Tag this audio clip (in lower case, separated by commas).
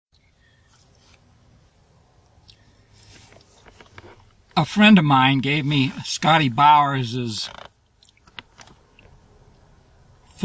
mastication